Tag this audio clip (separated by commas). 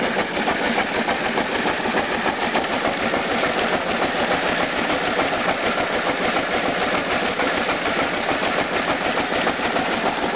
Idling, Medium engine (mid frequency), Engine